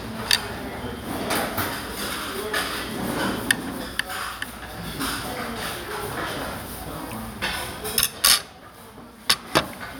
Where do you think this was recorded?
in a restaurant